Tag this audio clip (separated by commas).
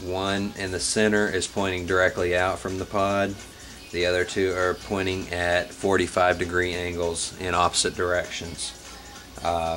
Music, Speech